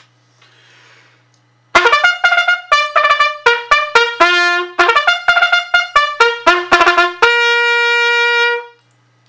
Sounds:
playing bugle

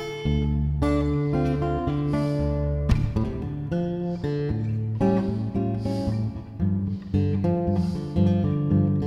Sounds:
Musical instrument, Music, Guitar, Strum, playing acoustic guitar, Acoustic guitar

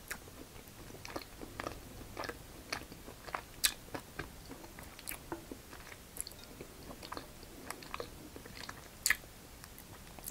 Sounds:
people slurping

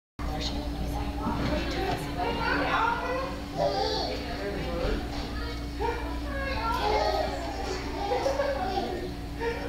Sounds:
kid speaking, inside a large room or hall, Speech

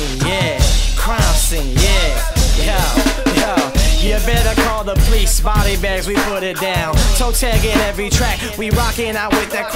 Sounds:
Music, Independent music

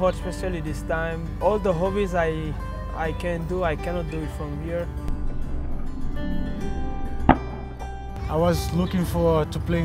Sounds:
outside, urban or man-made, Music, Speech

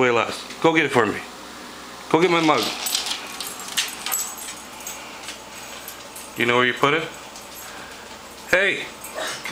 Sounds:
Speech

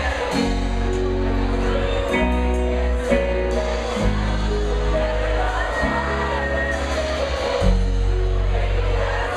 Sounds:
Music, Speech

